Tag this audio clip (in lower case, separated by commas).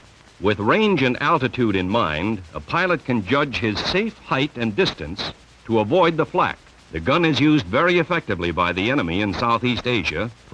speech